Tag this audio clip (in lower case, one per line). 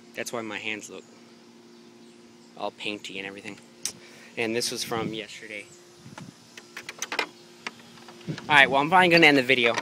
speech